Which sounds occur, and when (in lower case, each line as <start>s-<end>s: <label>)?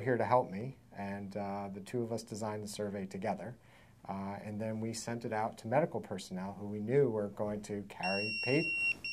0.0s-0.7s: man speaking
0.0s-9.1s: background noise
0.9s-3.6s: man speaking
3.6s-4.0s: breathing
3.9s-8.7s: man speaking
8.0s-8.9s: bleep
9.0s-9.1s: bleep